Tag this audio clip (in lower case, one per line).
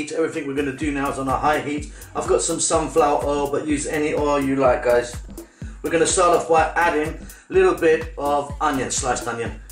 speech
music